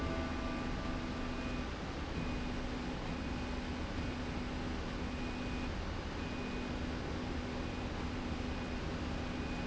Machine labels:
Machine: slide rail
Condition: normal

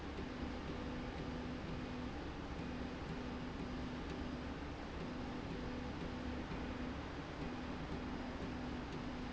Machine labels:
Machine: slide rail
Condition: normal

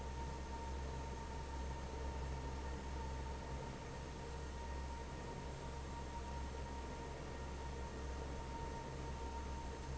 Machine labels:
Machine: fan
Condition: normal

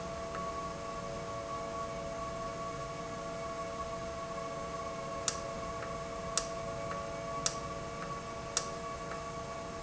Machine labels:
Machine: valve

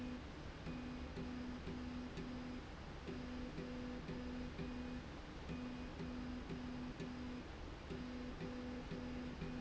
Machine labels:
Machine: slide rail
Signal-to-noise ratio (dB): 6 dB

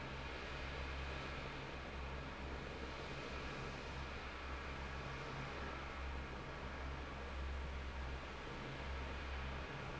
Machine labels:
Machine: fan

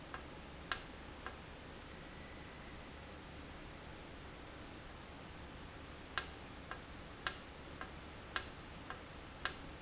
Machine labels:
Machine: valve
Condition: normal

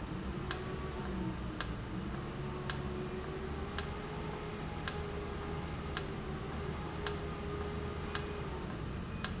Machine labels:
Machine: valve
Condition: normal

